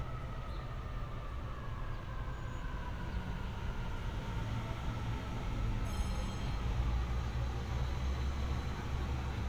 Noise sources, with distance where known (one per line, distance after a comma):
siren